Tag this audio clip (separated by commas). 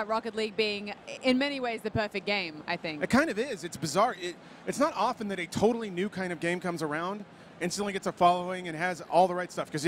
Speech